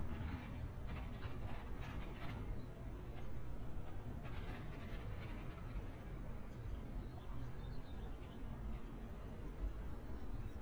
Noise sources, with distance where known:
background noise

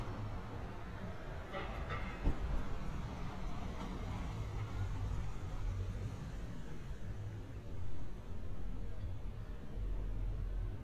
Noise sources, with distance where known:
unidentified impact machinery, far

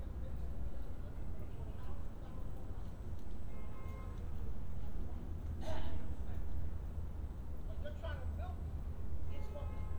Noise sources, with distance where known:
unidentified alert signal, far; unidentified human voice, far

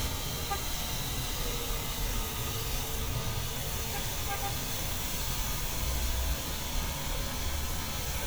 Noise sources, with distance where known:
car horn

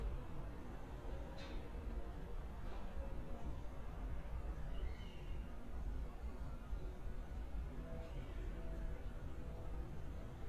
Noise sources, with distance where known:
background noise

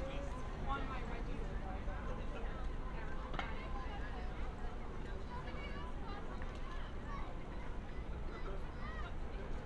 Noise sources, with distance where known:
unidentified human voice

